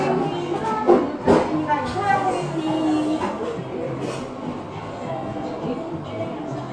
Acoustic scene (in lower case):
cafe